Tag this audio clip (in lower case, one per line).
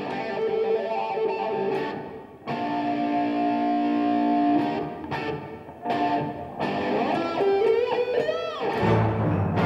musical instrument
guitar
plucked string instrument
music
orchestra
strum